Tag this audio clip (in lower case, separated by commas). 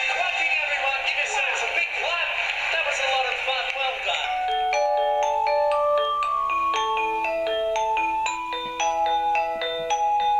music for children, speech, music